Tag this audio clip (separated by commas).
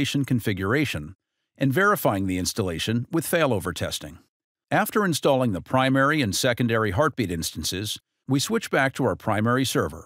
Speech